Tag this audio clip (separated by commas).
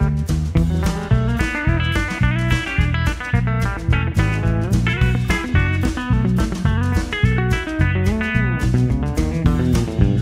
Musical instrument, Music, Plucked string instrument, Guitar